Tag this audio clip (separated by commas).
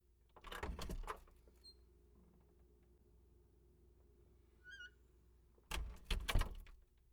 Squeak